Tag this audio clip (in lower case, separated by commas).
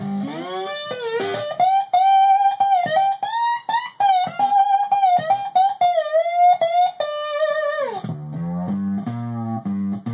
music, strum, musical instrument, electric guitar, plucked string instrument, guitar